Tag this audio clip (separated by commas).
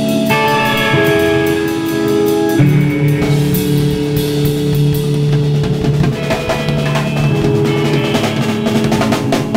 Drum, Drum kit, Rimshot, Snare drum, Drum roll, Bass drum, Percussion